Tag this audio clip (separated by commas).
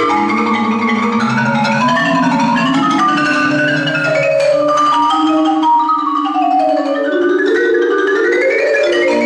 Music, Percussion